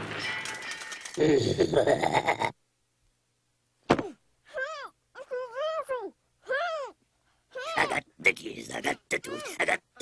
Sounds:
Speech

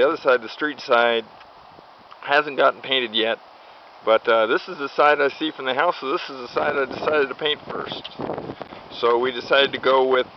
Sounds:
Speech

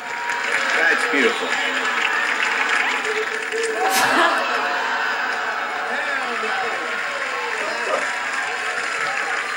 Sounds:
Speech

